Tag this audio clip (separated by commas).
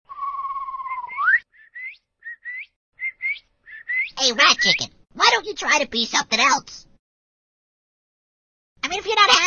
Speech